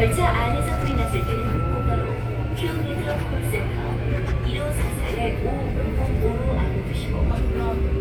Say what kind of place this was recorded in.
subway train